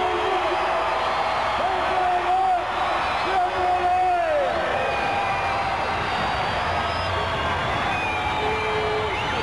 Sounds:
Speech

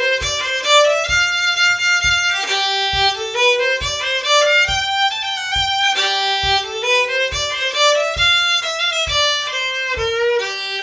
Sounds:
Music, fiddle, Musical instrument

